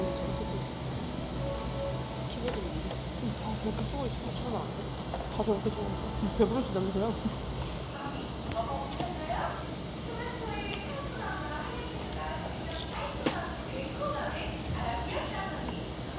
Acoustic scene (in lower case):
cafe